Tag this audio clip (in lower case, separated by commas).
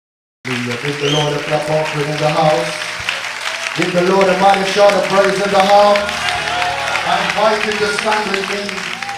speech